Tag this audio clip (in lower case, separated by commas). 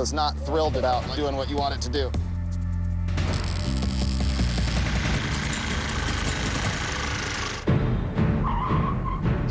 music, vehicle, speech